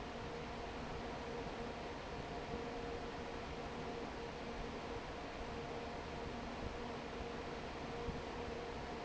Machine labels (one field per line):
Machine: fan